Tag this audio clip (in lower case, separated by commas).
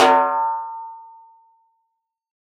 musical instrument, snare drum, drum, percussion, music